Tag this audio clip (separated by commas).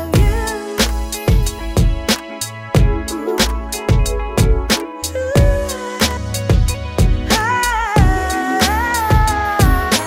Music, Rhythm and blues